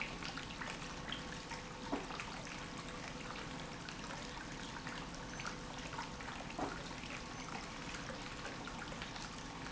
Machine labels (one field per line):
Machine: pump